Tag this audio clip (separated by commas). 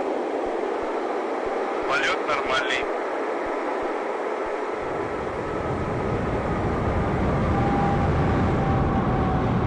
Speech